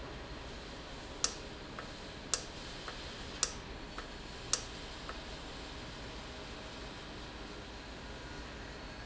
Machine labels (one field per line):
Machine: valve